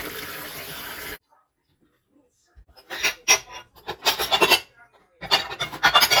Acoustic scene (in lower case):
kitchen